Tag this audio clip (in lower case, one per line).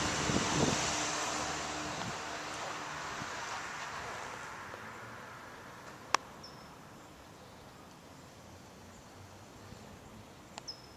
wind
wind noise (microphone)